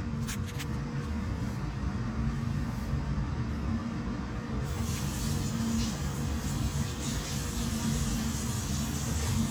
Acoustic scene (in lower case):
restroom